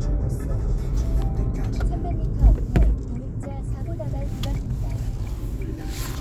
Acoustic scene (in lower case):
car